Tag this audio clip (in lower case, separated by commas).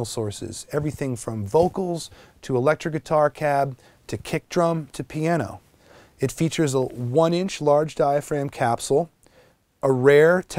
speech